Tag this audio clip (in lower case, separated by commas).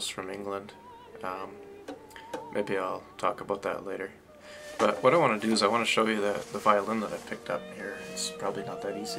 musical instrument, music, speech